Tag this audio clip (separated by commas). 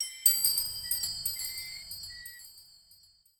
Glass